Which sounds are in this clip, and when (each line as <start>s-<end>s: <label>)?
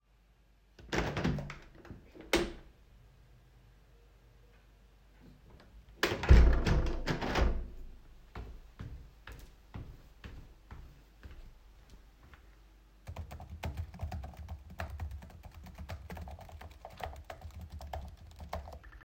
0.9s-2.7s: window
6.0s-7.8s: window
8.3s-11.7s: footsteps
13.1s-19.0s: keyboard typing